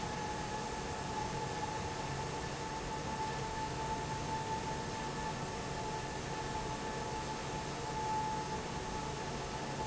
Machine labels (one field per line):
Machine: fan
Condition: normal